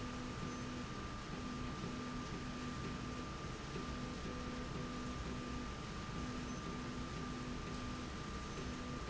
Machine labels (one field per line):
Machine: slide rail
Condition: normal